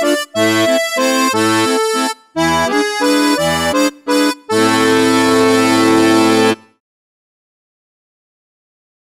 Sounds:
accordion
musical instrument
music

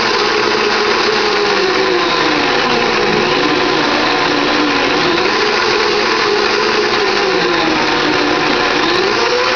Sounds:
blender

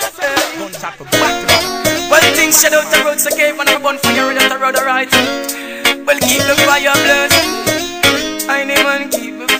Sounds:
music
speech

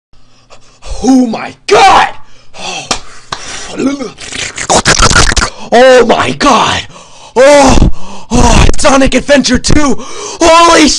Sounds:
speech

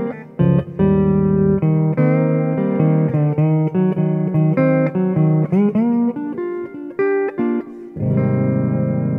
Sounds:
slide guitar

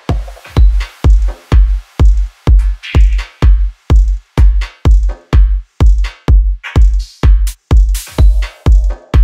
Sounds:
music

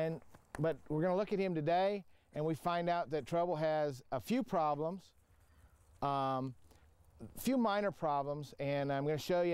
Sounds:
speech

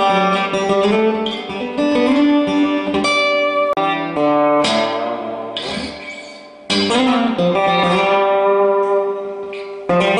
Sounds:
strum
musical instrument
guitar
music
plucked string instrument
electric guitar

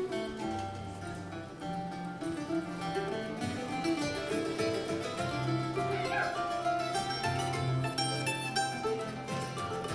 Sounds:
banjo
music

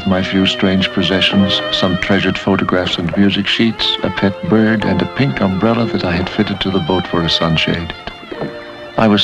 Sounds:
bowed string instrument
fiddle

